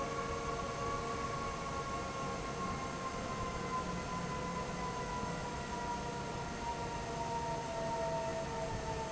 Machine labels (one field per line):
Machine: fan